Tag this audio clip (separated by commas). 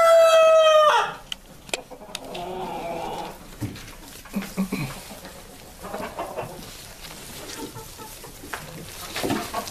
Cluck, Fowl, cock-a-doodle-doo, Chicken